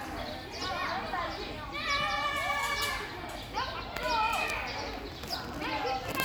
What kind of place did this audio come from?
park